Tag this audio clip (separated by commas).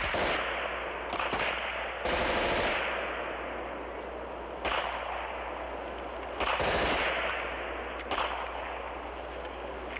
machine gun shooting